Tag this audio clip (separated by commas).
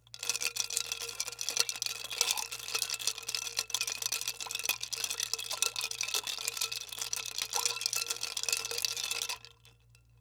Liquid